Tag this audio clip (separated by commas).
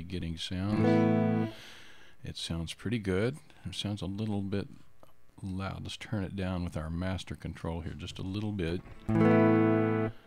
Speech, Music